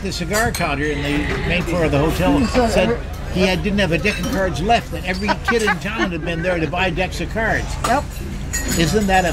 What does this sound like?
A man chatting over a dinner table with the sound of cutlery and people in the background